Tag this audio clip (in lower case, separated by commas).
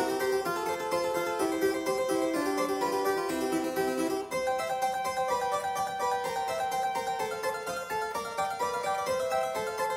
playing harpsichord